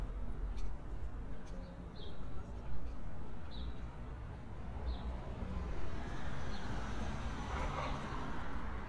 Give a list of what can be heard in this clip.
medium-sounding engine